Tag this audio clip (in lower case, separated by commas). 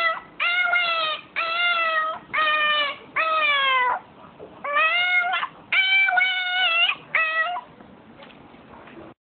whimper (dog), domestic animals, yip, animal, dog